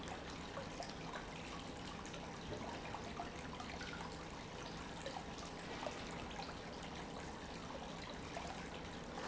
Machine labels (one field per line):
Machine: pump